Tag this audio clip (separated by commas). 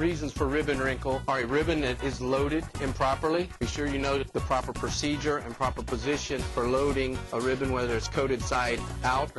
Speech, Music